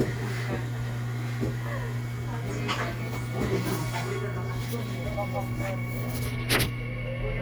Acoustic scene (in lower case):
subway train